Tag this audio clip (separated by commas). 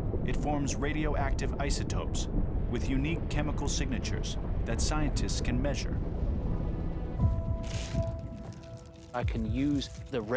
volcano explosion